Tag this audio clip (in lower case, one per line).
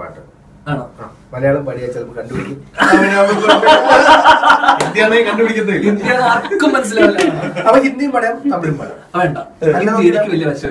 speech